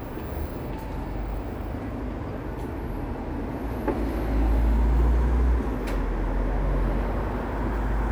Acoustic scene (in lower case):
street